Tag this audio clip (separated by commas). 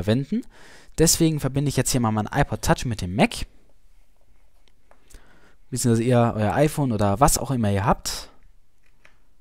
Speech